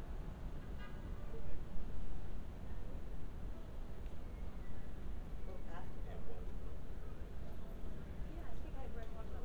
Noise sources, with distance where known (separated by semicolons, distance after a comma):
car horn, far; person or small group talking